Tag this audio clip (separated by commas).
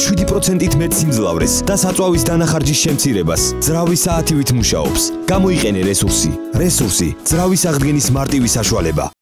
Speech, Music